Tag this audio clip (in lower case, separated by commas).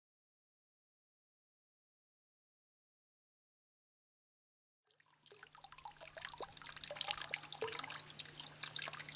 silence, drip